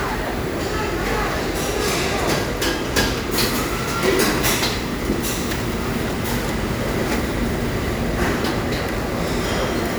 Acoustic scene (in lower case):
restaurant